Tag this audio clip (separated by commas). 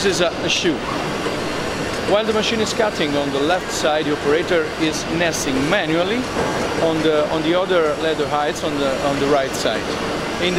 Speech